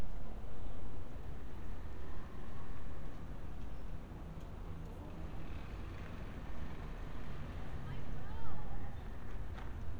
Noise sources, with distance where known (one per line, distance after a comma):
engine of unclear size, far
unidentified human voice, far